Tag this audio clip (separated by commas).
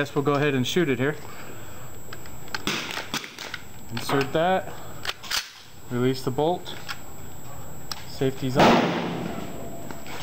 gunfire